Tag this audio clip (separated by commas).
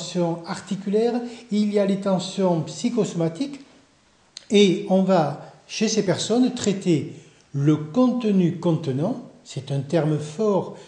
Speech